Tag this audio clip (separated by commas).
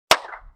Hands, Clapping